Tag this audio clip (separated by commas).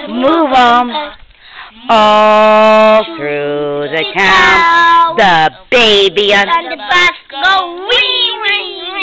Female singing, Child singing